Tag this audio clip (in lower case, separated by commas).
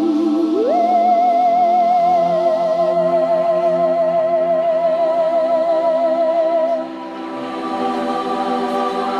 music